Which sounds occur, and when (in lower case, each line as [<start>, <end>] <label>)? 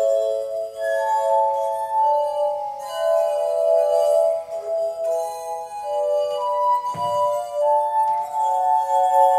[0.00, 9.35] glass
[0.00, 9.35] music